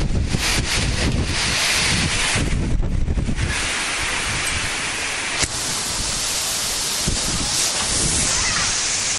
The sound of wind is accompanied by the rustling of a material